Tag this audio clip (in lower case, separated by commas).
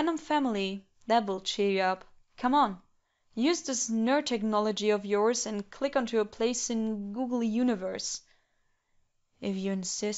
speech